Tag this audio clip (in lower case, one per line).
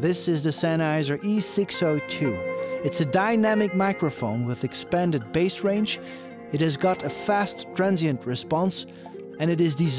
speech
music
musical instrument